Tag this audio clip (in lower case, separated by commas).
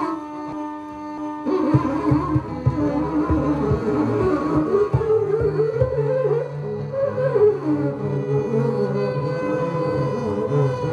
didgeridoo, carnatic music, sitar